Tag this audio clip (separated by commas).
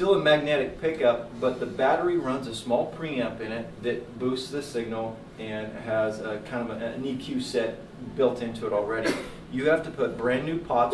Speech